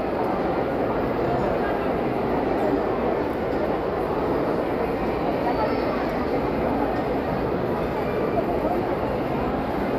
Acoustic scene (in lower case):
crowded indoor space